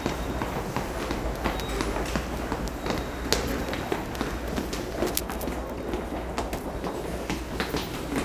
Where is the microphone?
in a subway station